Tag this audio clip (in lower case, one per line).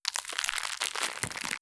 crackle